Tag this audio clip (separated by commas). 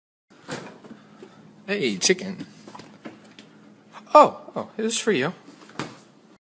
Speech